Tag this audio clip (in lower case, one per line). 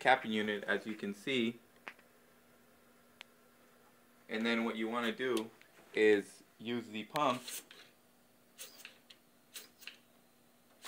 speech